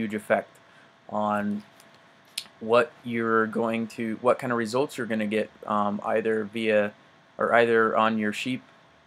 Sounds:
Speech

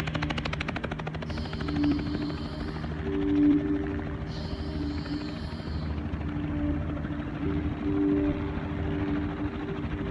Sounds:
Vehicle, Helicopter, Music

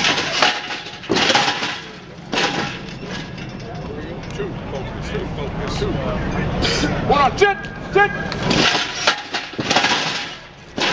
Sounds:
Speech

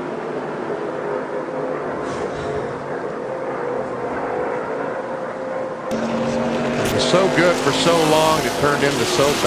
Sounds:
Speech, Vehicle

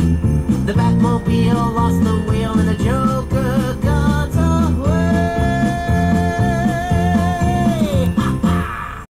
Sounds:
Music

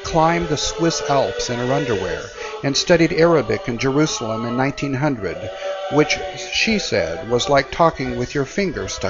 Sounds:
Speech

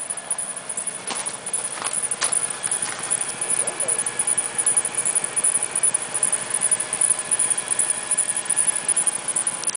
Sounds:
Cacophony, Speech

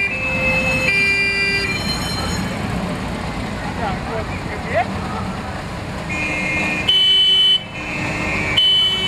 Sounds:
Speech, car horn, Fire engine, Vehicle, Motor vehicle (road)

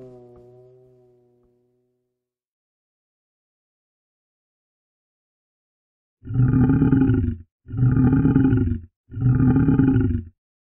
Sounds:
lions growling

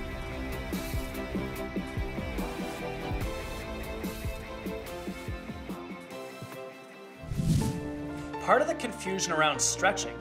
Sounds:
inside a small room, Music, Speech

